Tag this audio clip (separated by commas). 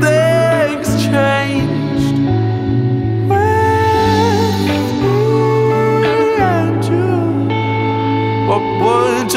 Blues, Music